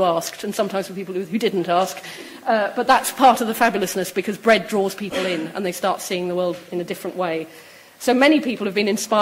A woman speaks indoors, someone coughs in the distance